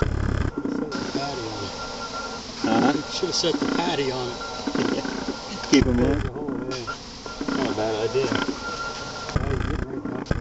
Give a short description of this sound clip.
Flies are buzzing and a man speaks